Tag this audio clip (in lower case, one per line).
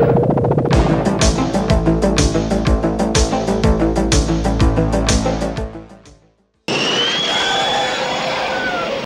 music
vehicle